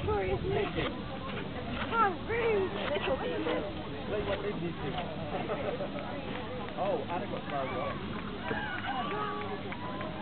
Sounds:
speech

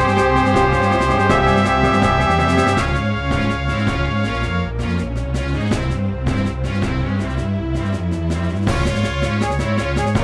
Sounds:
jazz, music

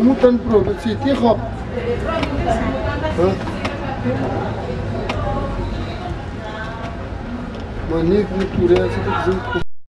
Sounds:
speech

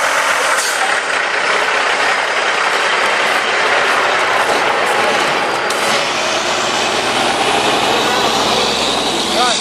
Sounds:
speech

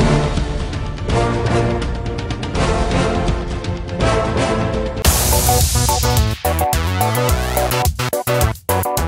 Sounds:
music

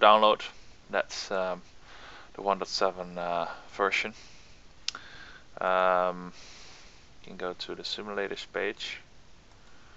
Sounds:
speech

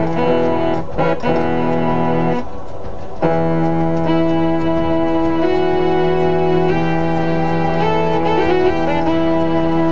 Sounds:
harpsichord, music

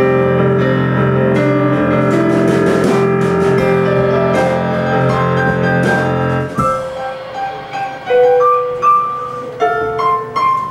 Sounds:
music, inside a large room or hall

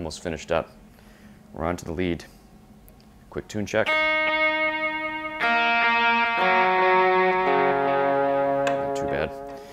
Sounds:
music, guitar, speech, musical instrument

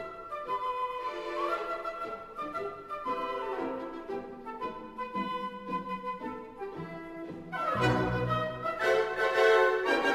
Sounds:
music, orchestra

